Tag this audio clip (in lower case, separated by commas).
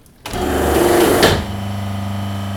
engine, mechanisms